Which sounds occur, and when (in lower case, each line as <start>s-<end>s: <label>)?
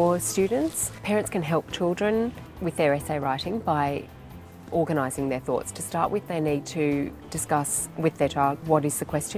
0.0s-0.7s: woman speaking
0.0s-9.3s: music
1.0s-2.3s: woman speaking
2.5s-4.1s: woman speaking
4.6s-7.1s: woman speaking
7.3s-9.3s: woman speaking